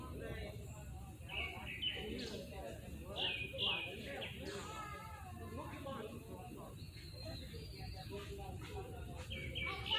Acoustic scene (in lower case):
park